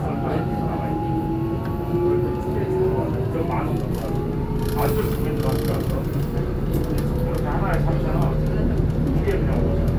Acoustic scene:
subway train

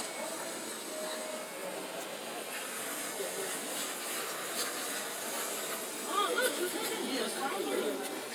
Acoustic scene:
residential area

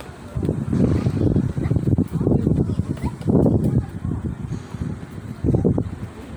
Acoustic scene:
park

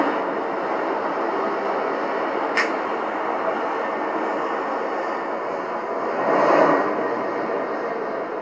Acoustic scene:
street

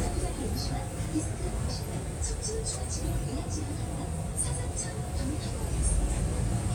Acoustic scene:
bus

